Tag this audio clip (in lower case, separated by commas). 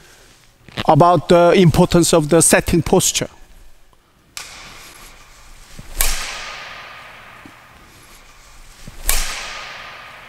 playing badminton